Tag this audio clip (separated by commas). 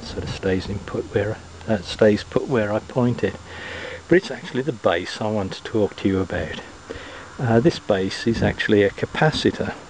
Speech